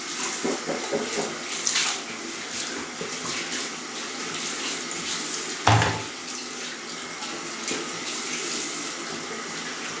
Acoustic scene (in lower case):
restroom